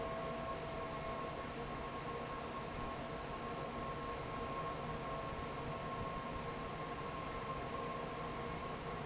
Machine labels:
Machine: fan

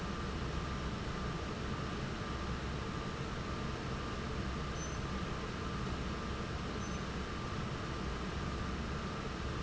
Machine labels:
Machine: fan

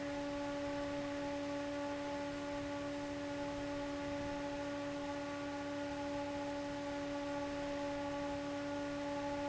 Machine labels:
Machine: fan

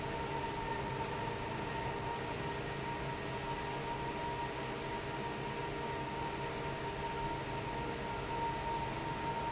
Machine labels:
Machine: fan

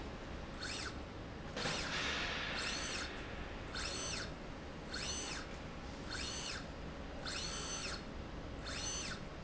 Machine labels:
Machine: slide rail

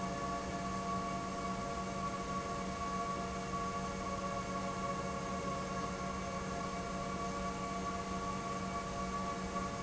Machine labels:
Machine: pump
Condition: normal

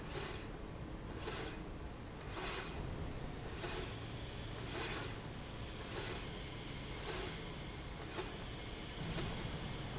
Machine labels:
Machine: slide rail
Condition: normal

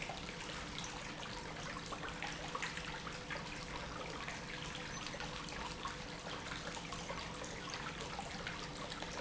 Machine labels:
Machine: pump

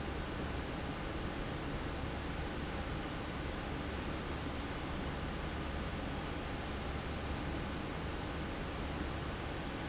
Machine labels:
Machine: fan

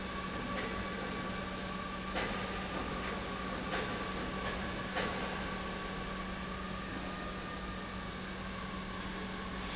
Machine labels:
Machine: pump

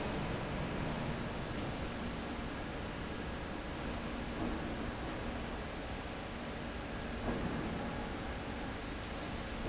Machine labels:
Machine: fan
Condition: abnormal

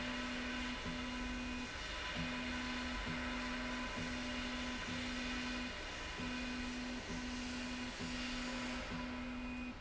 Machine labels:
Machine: slide rail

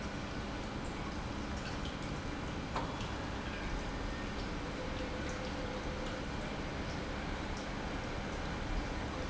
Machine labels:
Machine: pump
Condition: normal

